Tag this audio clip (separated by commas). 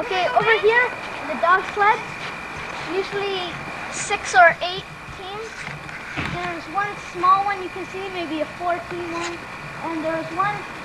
Speech